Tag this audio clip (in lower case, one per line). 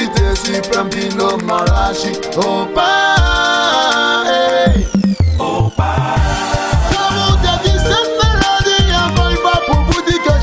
music